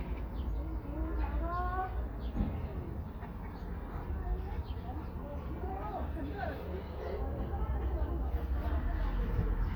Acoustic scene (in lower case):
residential area